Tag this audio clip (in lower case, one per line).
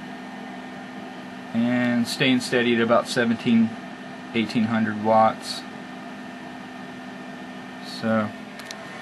speech